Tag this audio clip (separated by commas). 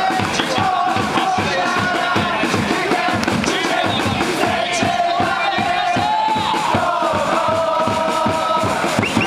Crowd, Cheering, Music, Vocal music